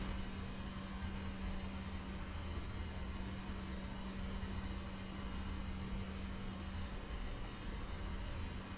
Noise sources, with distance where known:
background noise

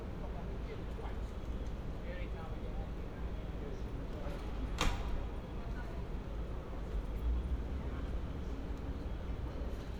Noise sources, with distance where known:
person or small group talking

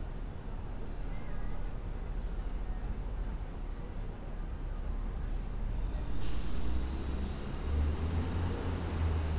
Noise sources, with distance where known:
large-sounding engine
person or small group talking, far

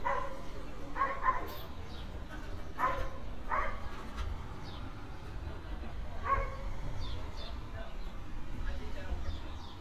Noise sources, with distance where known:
dog barking or whining, far

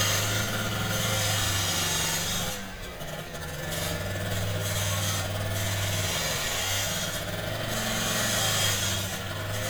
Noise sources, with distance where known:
unidentified impact machinery, near

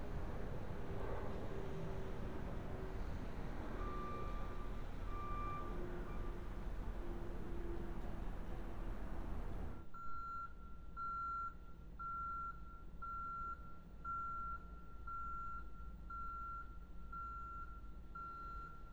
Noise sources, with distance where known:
reverse beeper

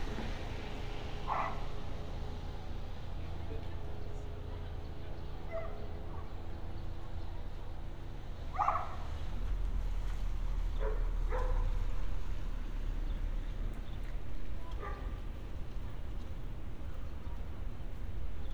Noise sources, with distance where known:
dog barking or whining

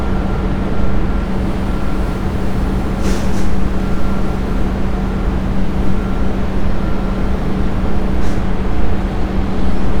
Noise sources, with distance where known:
large-sounding engine
reverse beeper, far

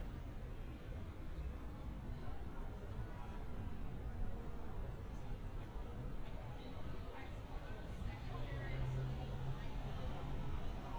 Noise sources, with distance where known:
person or small group talking

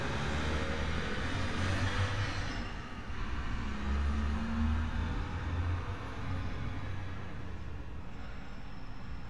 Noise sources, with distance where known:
large-sounding engine, near

